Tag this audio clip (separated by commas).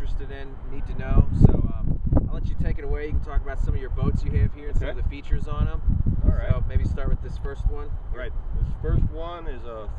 Speech